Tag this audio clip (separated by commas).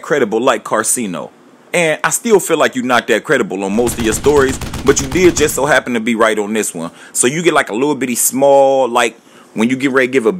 people booing